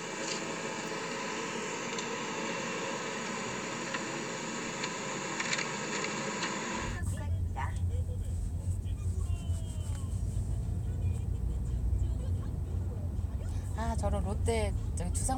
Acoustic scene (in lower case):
car